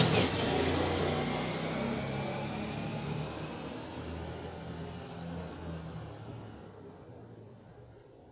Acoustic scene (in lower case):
residential area